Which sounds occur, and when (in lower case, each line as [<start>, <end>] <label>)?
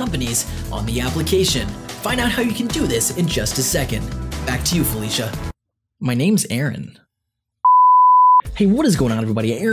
[0.00, 0.42] male speech
[0.00, 5.48] music
[0.68, 1.61] male speech
[2.00, 4.00] male speech
[4.43, 5.27] male speech
[5.99, 6.92] male speech
[7.63, 8.39] beep
[8.38, 9.72] music
[8.54, 9.72] male speech